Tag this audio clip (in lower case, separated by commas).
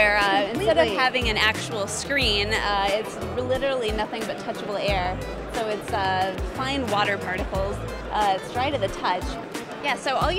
music, speech